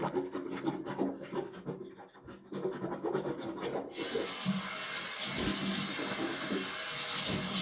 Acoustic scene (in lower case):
restroom